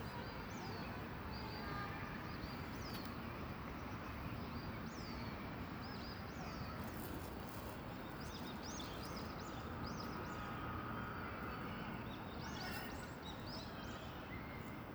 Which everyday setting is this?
park